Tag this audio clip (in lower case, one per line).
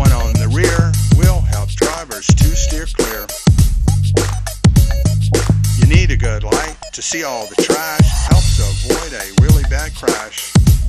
music